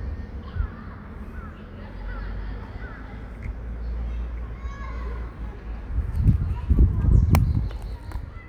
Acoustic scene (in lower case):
residential area